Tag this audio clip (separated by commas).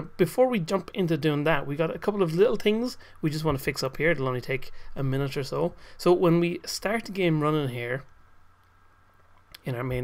Speech